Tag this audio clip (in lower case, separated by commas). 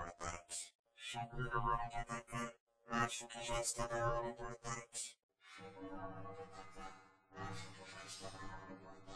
speech, music